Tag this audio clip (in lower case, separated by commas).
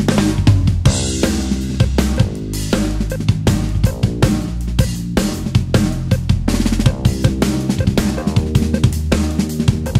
drum kit, music, drum, musical instrument